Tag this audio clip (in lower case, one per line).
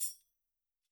music
musical instrument
tambourine
percussion